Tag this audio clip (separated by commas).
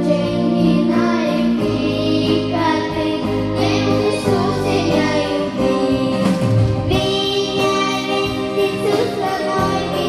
Singing, inside a large room or hall, Music, Choir